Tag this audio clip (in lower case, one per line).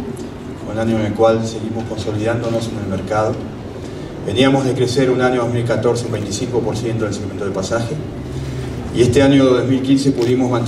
speech